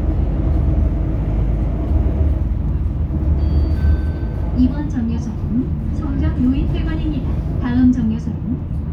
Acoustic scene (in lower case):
bus